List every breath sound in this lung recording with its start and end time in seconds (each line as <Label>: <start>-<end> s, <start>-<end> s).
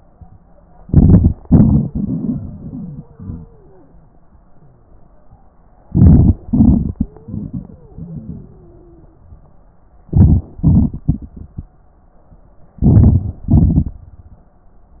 Inhalation: 0.83-1.30 s, 5.87-6.38 s, 10.08-10.50 s, 12.82-13.39 s
Exhalation: 1.41-3.90 s, 6.46-9.27 s, 10.54-11.70 s, 13.41-13.98 s
Wheeze: 2.68-4.01 s, 6.97-9.27 s